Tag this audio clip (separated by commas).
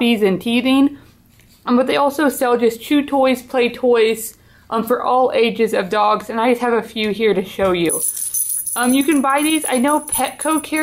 Speech